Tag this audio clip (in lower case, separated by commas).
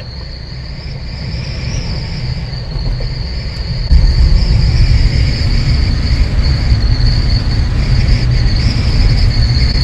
wind noise